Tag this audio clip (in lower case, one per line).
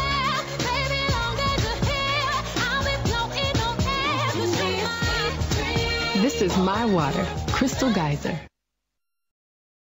music
speech